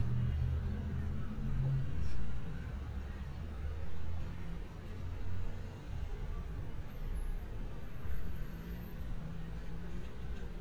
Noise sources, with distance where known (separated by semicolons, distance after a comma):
medium-sounding engine, far